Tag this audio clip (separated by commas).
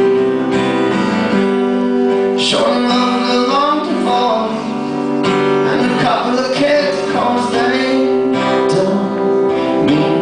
Music